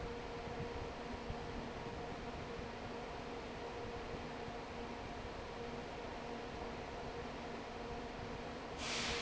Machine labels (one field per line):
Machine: fan